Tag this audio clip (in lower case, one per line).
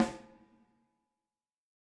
music
snare drum
musical instrument
drum
percussion